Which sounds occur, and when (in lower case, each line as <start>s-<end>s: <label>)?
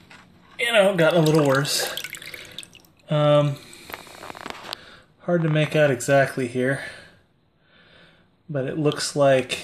0.0s-9.6s: background noise
0.0s-0.3s: generic impact sounds
0.5s-1.9s: man speaking
1.2s-3.0s: water
2.0s-2.6s: breathing
3.1s-3.6s: man speaking
3.7s-5.1s: breathing
3.8s-4.8s: generic impact sounds
5.2s-6.9s: man speaking
5.3s-5.8s: generic impact sounds
6.8s-7.2s: breathing
7.6s-8.2s: breathing
8.5s-9.6s: man speaking
8.9s-9.0s: tick
9.5s-9.5s: tick